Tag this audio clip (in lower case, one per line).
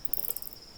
wild animals
insect
animal